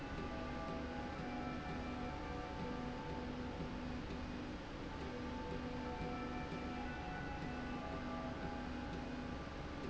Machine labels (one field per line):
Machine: slide rail